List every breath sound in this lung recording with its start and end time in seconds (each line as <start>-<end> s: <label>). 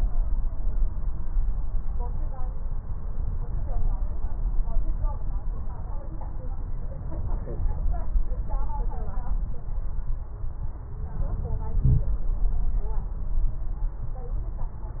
No breath sounds were labelled in this clip.